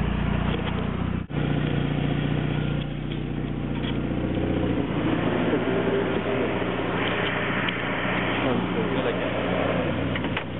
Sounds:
Speech, outside, rural or natural, Vehicle

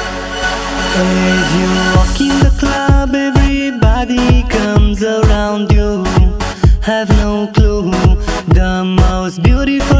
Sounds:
Music

